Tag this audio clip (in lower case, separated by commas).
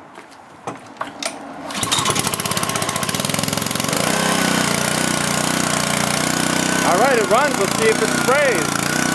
engine, speech, lawn mower